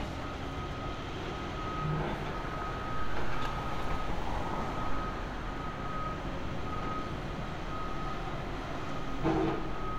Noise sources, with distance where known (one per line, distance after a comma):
unidentified alert signal